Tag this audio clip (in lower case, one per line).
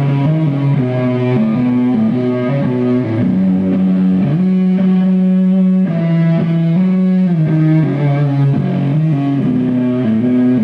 music